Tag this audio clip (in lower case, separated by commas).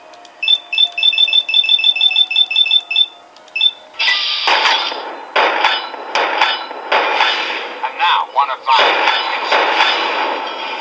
speech